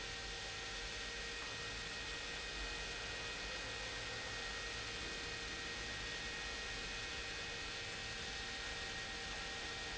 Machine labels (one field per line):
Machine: pump